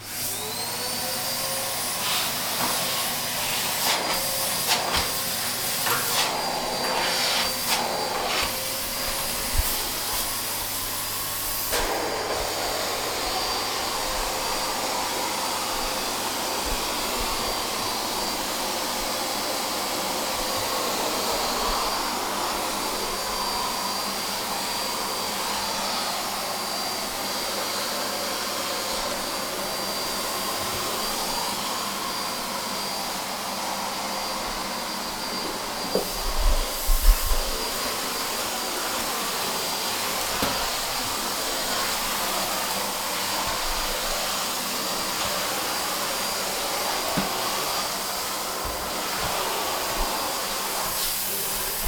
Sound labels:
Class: vacuum cleaner